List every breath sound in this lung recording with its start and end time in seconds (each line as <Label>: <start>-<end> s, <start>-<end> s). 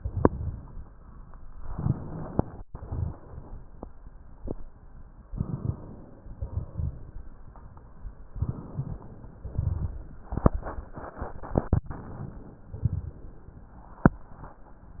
Inhalation: 1.59-2.65 s, 5.32-6.37 s, 8.34-9.39 s, 11.87-12.77 s
Exhalation: 2.67-3.72 s, 6.35-7.40 s, 9.38-10.16 s, 12.77-13.73 s
Rhonchi: 1.59-2.62 s, 2.67-3.70 s